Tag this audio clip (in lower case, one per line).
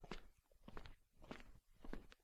footsteps